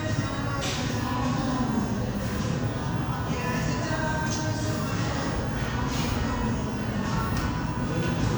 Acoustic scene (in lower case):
cafe